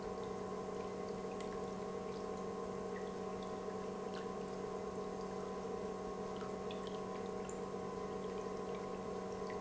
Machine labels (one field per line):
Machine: pump